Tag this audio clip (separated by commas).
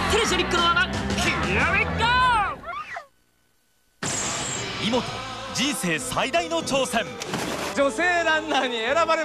Speech, Music